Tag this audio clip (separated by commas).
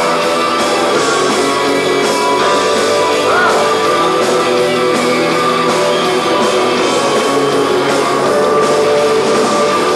pop, Music